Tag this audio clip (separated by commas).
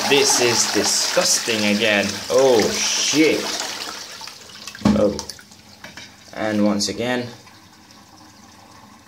Water, Toilet flush